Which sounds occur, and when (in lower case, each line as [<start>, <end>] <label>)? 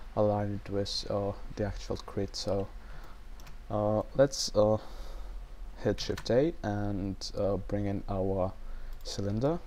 [0.00, 9.65] mechanisms
[0.14, 2.63] male speech
[2.45, 2.63] clicking
[2.77, 3.20] breathing
[2.91, 3.08] clicking
[3.34, 3.48] clicking
[3.68, 4.75] male speech
[4.73, 5.28] breathing
[5.75, 8.49] male speech
[5.96, 6.30] clicking
[7.34, 7.46] clicking
[8.55, 8.99] breathing
[8.89, 9.52] clicking
[9.02, 9.59] male speech